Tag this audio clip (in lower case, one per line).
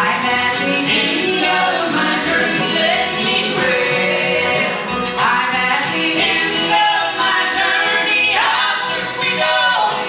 country
male singing
music
choir
female singing
bluegrass